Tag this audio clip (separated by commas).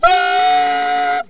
Music, Musical instrument, Wind instrument